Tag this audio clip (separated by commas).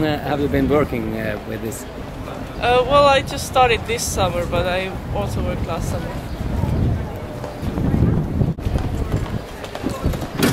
Speech